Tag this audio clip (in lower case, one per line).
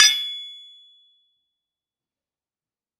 tools